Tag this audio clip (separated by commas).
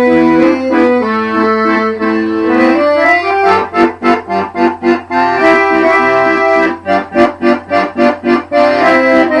playing accordion, Accordion, Music